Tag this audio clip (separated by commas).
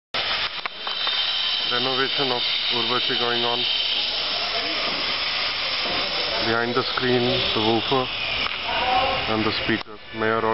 Steam, Hiss